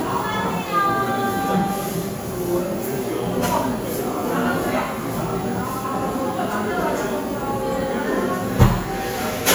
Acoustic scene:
cafe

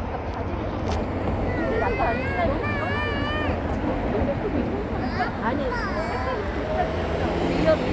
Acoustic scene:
residential area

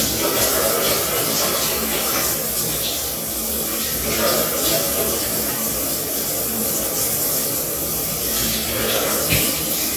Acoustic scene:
restroom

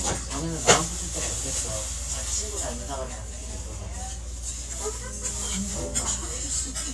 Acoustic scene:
restaurant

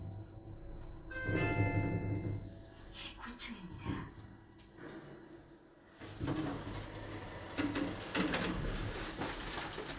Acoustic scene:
elevator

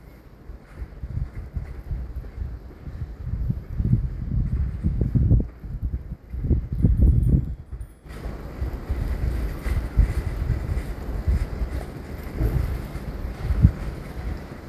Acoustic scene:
residential area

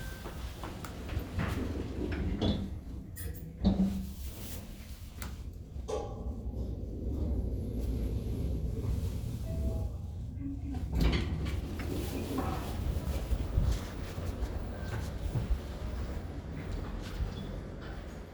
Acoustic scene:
elevator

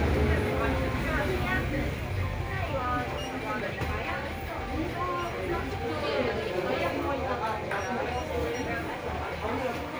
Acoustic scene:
crowded indoor space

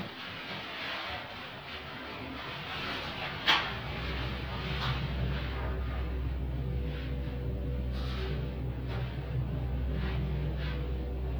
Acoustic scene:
elevator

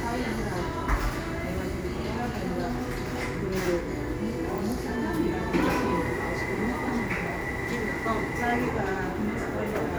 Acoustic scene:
cafe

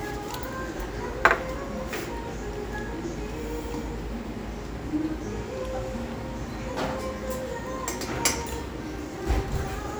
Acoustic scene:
restaurant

